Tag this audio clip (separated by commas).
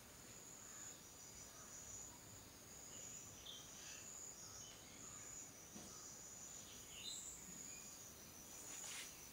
Bird, Animal